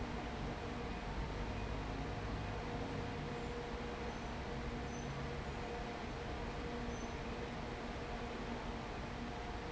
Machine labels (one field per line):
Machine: fan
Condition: abnormal